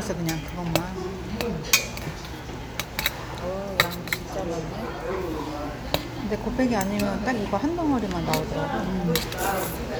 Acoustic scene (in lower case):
restaurant